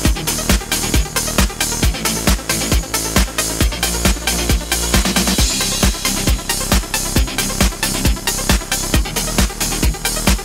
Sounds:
Trance music, Music

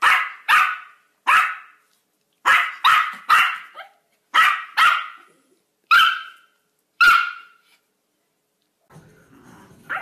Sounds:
Yip, Bark, Dog, Animal, pets

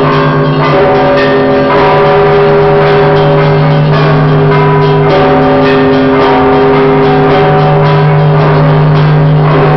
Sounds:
Music

